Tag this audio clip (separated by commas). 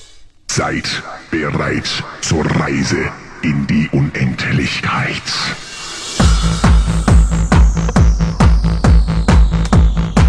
Speech, Music